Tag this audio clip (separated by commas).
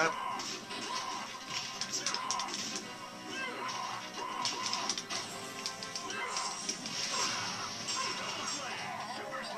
Speech, Music